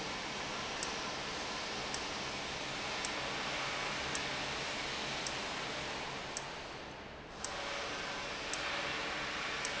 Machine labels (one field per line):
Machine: valve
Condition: abnormal